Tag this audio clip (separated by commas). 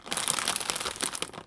Crushing